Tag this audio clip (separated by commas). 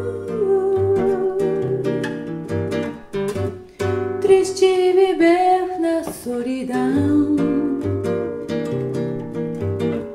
playing acoustic guitar, Guitar, Acoustic guitar, Singing, Music, Musical instrument, Plucked string instrument